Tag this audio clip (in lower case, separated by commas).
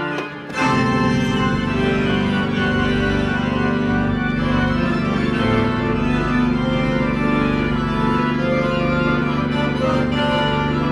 playing electronic organ